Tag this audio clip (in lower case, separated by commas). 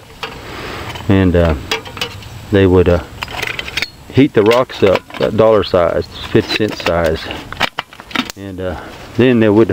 speech